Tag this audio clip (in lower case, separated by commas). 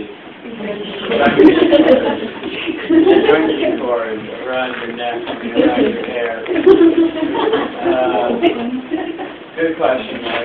speech, male speech